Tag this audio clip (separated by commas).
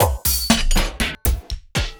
Music, Musical instrument, Percussion, Drum kit